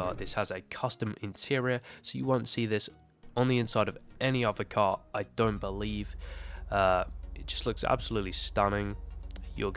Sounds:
speech

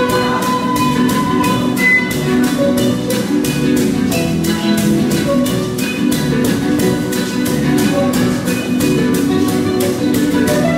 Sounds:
music

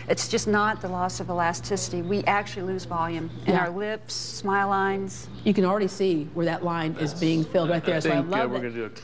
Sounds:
inside a large room or hall, speech

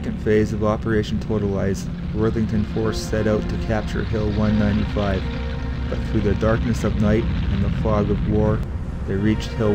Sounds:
music, speech

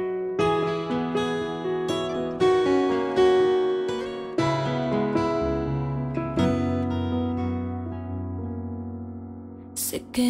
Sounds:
music

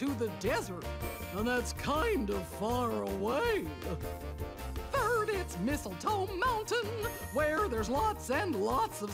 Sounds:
music, speech

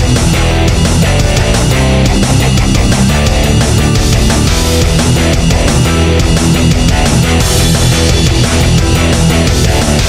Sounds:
music, soundtrack music

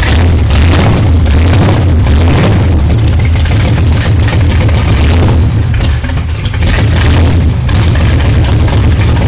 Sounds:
medium engine (mid frequency), idling, revving, engine

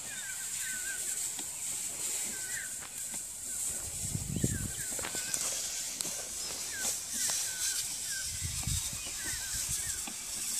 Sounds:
rustling leaves

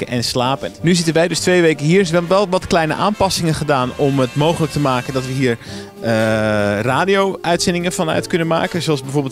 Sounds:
speech, music

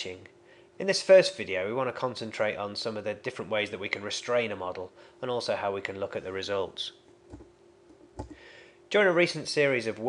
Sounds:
speech

